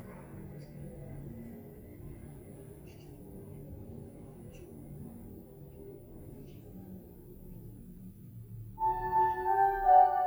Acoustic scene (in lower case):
elevator